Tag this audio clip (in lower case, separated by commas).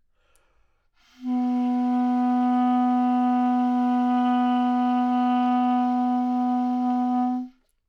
woodwind instrument, music, musical instrument